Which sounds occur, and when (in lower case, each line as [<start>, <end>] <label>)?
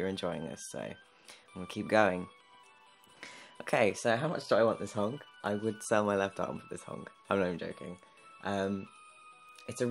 [0.00, 0.96] male speech
[0.00, 9.90] music
[0.00, 9.90] video game sound
[1.22, 1.43] breathing
[1.53, 2.30] male speech
[3.15, 3.51] breathing
[3.60, 5.22] male speech
[5.40, 5.66] male speech
[5.79, 7.07] male speech
[7.28, 8.02] male speech
[8.40, 8.87] male speech
[9.51, 9.61] clicking
[9.66, 9.90] male speech